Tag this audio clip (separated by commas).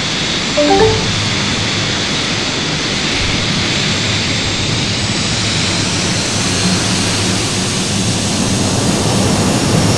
Vehicle, Aircraft, Heavy engine (low frequency)